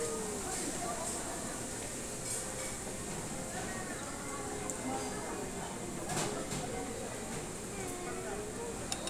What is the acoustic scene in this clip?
restaurant